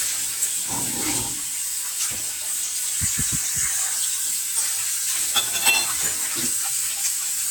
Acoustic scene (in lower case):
kitchen